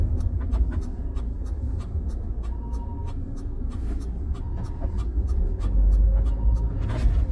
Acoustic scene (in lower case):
car